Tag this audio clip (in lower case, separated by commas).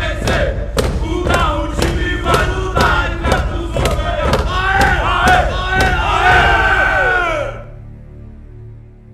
battle cry, crowd